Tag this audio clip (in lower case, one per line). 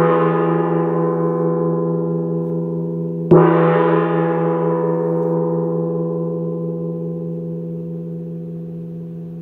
playing gong